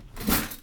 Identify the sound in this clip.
wooden drawer closing